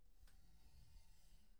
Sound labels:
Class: furniture moving; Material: metal; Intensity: low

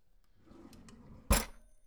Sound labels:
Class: drawer; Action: opening; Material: wooden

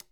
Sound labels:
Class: switch; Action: being turned off; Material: plastic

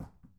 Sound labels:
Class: object falling; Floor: carpet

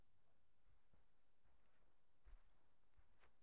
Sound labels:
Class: footsteps; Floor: carpet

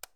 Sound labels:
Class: switch; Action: being turned off; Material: plastic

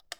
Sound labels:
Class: switch; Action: being turned on; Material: plastic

